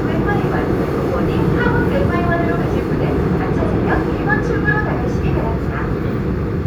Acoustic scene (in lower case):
subway train